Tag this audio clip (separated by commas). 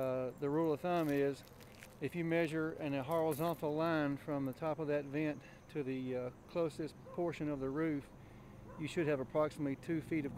Speech